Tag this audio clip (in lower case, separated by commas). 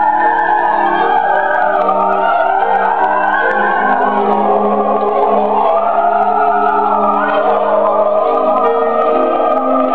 music, choir, gospel music, opera